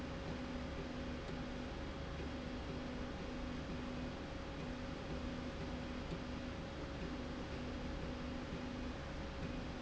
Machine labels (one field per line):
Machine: slide rail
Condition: normal